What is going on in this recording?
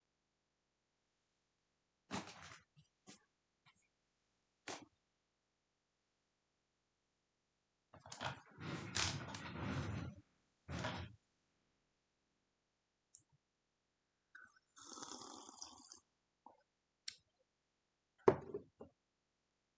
I am opening the window, then i sit down on the chair and move it around a bit. Then i slurp on my water.